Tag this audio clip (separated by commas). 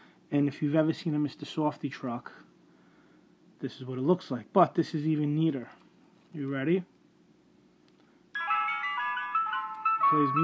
Speech